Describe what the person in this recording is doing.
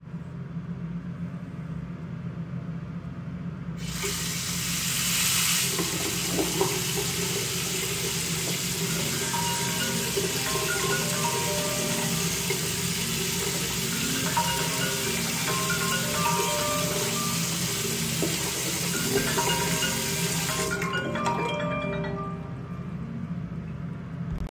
I placed the recording device on the bathroom counter. I turned on the tap and let the water run. While the water was still running, my phone received a call and rang for several seconds. I then turned off the tap and let the ambience settle.